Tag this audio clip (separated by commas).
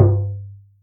Tap